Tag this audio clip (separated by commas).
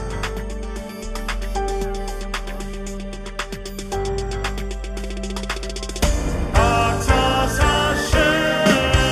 Music